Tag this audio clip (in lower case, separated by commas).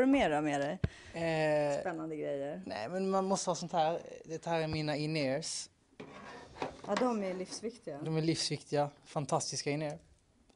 speech